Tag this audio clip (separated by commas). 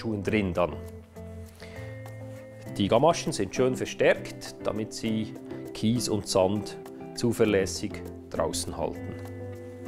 Music, Speech